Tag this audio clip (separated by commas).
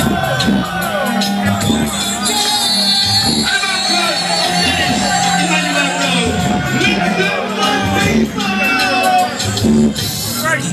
Speech, Music